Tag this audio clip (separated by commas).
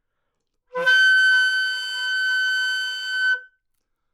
Musical instrument, Music, Wind instrument